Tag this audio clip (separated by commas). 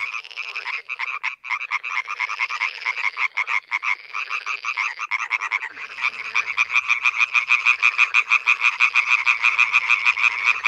frog croaking